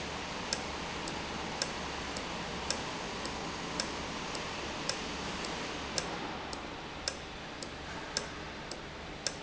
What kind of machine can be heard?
valve